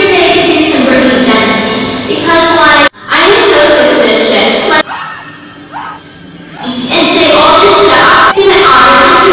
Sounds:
Speech

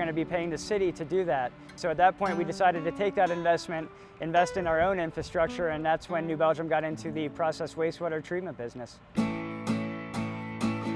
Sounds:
Speech, Music

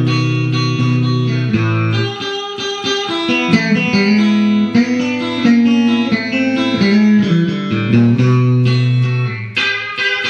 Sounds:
Guitar, Electric guitar, Music, Plucked string instrument, Strum, Musical instrument

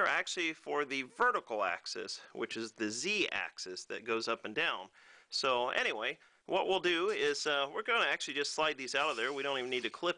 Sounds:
Speech

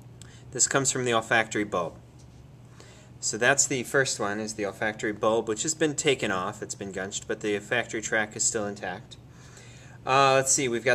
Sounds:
Speech

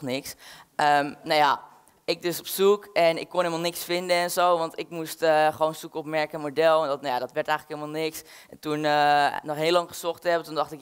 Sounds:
Speech

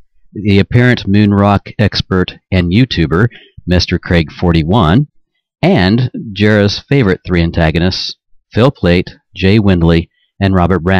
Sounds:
Speech

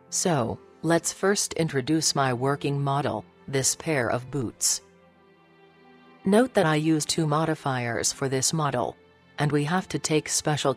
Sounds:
Speech, Music

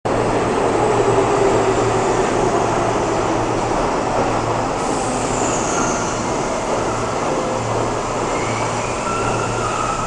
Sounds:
Railroad car, Train, Rail transport

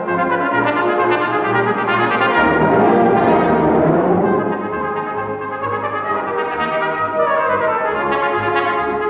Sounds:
playing cornet

